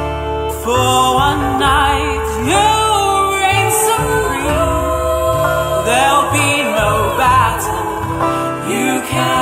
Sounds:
music
singing

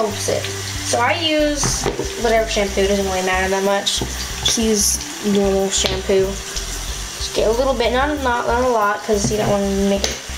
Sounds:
faucet
speech
music

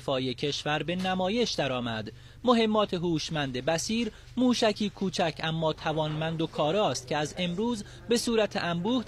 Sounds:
speech

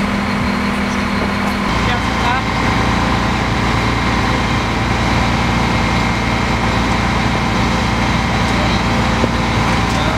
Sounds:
speech

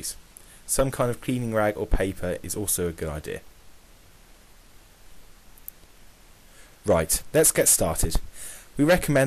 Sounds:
speech

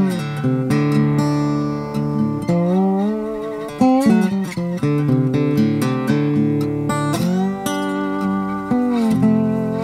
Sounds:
music
acoustic guitar

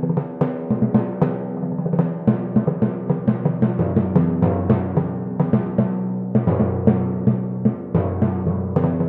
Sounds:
percussion
music
musical instrument
drum
timpani
drum kit

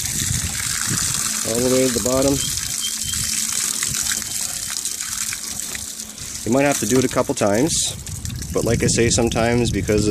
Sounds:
water
speech

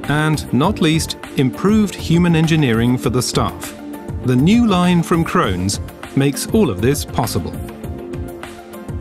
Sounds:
speech
music

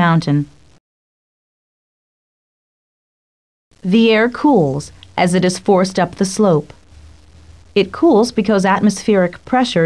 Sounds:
speech

